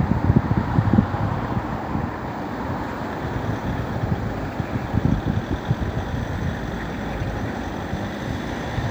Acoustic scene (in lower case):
street